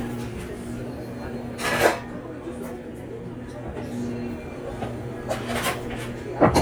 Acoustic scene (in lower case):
cafe